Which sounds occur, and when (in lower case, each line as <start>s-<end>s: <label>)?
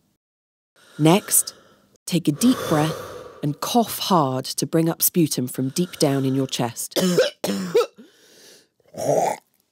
0.0s-0.1s: background noise
0.7s-2.0s: background noise
0.8s-1.6s: female speech
2.0s-2.9s: female speech
2.0s-9.7s: background noise
2.1s-3.5s: breathing
3.4s-6.7s: female speech
6.7s-7.3s: cough
7.4s-7.9s: cough
8.8s-9.5s: cough